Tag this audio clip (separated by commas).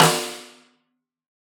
Snare drum, Drum, Percussion, Musical instrument, Music